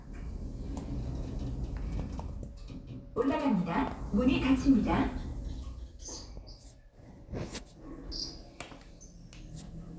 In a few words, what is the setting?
elevator